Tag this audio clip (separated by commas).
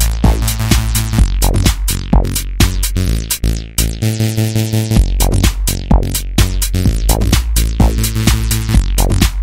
House music, Electronic music, Music